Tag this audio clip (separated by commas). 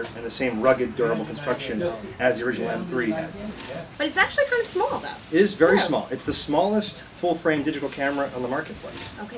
Single-lens reflex camera, Speech